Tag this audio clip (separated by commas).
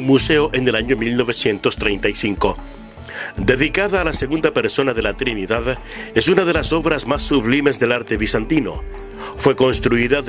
Music, Speech